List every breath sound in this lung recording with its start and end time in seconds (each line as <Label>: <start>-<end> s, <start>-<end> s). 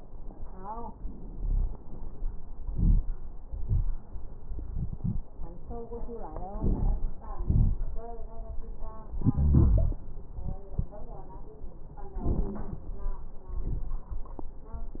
Inhalation: 2.68-3.00 s, 6.58-7.25 s
Exhalation: 3.46-3.98 s, 7.45-8.11 s
Wheeze: 9.27-9.98 s
Crackles: 2.68-3.00 s, 3.46-3.98 s, 6.58-7.25 s, 7.45-8.11 s